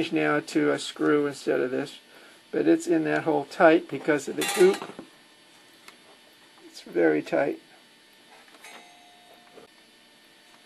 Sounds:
speech

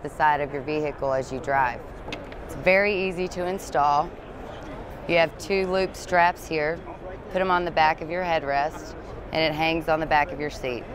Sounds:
speech

